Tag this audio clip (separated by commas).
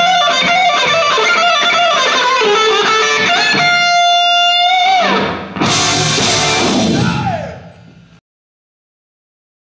Plucked string instrument, Strum, Guitar, Music, Musical instrument, Bass guitar